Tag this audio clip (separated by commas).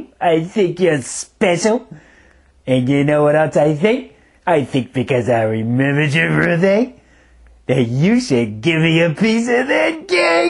Speech